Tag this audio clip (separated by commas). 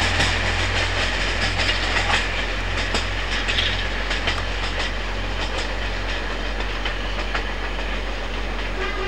train wagon, Vehicle, Train